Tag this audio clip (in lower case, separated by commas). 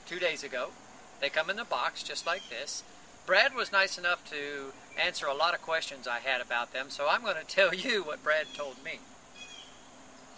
speech, outside, rural or natural